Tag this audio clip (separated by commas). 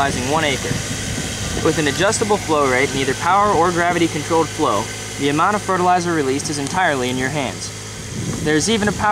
Speech